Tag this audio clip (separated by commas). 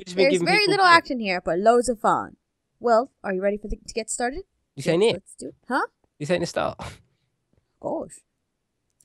Conversation